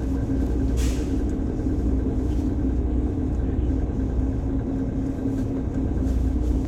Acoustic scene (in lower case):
bus